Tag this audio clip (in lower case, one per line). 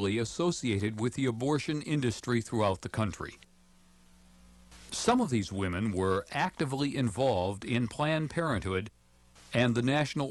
speech